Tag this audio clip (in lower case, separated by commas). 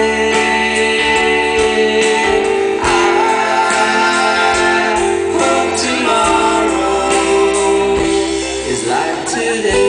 vocal music, singing